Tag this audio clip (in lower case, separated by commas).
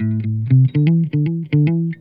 plucked string instrument, guitar, music, musical instrument, electric guitar